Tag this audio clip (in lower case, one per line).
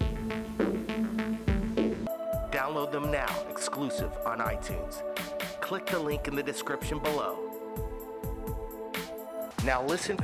speech
music